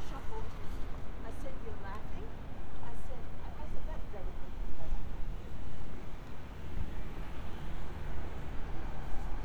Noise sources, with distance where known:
person or small group talking

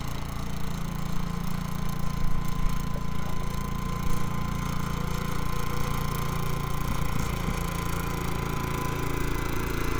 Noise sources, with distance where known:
large-sounding engine, near

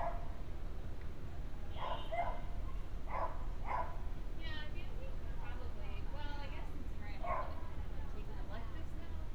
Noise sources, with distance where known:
person or small group talking, near
dog barking or whining, far

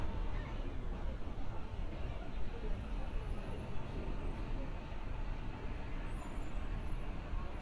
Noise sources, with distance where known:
engine of unclear size, far

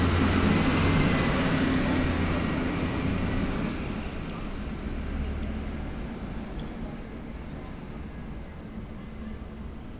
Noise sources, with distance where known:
large-sounding engine, near

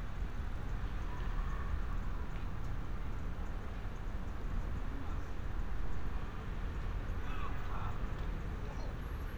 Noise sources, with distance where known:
unidentified human voice, far

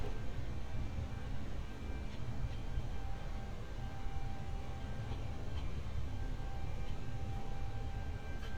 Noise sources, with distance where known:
background noise

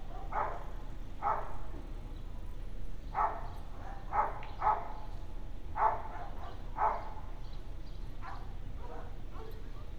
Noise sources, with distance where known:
dog barking or whining

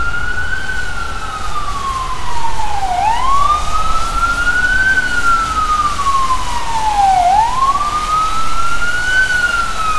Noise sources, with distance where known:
siren, near

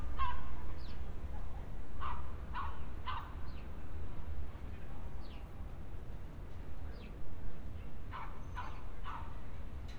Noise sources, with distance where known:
dog barking or whining, far

